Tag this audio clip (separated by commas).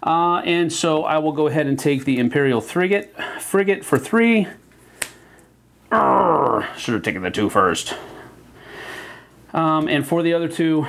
Speech